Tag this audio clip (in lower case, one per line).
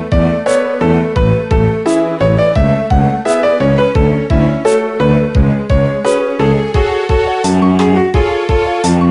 music
video game music